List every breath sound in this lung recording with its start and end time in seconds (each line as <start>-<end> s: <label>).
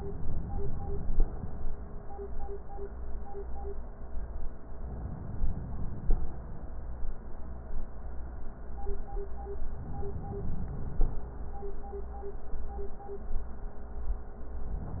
4.70-6.10 s: inhalation
6.10-6.72 s: exhalation
9.68-11.05 s: inhalation
11.12-11.74 s: exhalation